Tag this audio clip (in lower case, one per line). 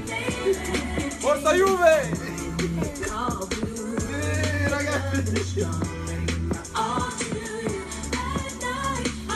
speech
music